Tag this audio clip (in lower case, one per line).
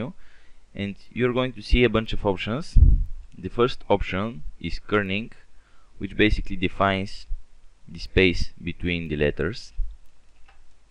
speech